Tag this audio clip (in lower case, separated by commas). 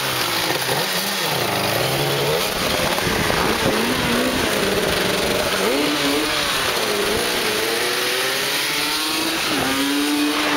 vehicle, motorcycle, outside, urban or man-made, medium engine (mid frequency)